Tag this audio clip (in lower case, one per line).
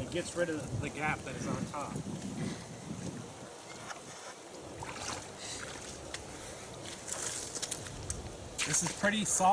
outside, rural or natural
speech